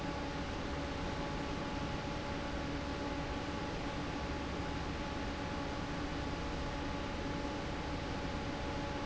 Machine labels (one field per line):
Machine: fan